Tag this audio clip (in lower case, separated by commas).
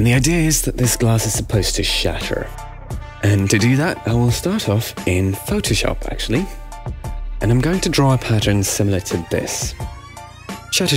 music, speech